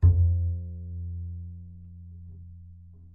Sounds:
Bowed string instrument, Musical instrument, Music

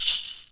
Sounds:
Percussion, Music, Musical instrument, Rattle (instrument)

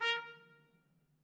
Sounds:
Music, Trumpet, Brass instrument, Musical instrument

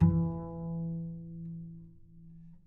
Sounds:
Musical instrument, Music, Bowed string instrument

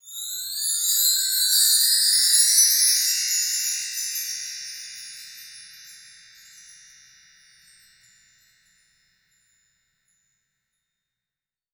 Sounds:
Chime, Bell

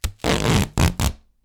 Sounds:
home sounds, duct tape

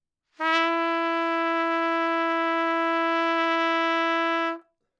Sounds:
Trumpet, Brass instrument, Musical instrument, Music

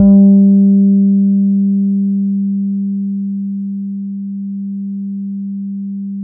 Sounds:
Bass guitar, Music, Plucked string instrument, Guitar, Musical instrument

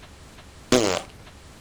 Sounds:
Fart

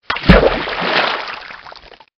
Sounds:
splatter, Liquid

